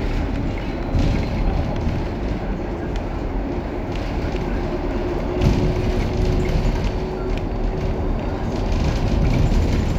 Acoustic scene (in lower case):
bus